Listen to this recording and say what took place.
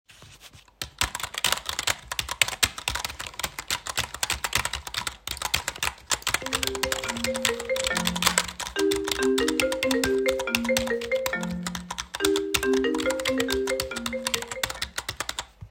I am typing on my keyboard and my phone rings.